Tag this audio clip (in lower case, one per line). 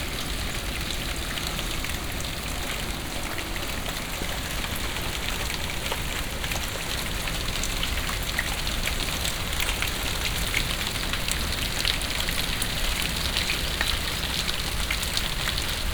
water
rain